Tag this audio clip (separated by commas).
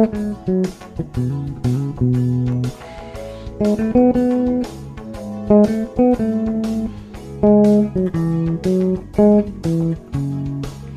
playing bass guitar